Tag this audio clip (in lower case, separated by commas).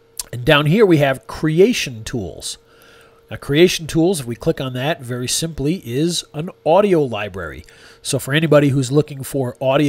speech